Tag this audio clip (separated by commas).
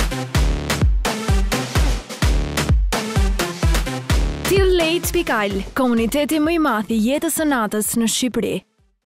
Speech, Music